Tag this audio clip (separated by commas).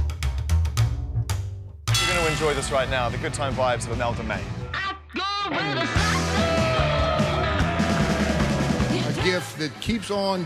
Music, Speech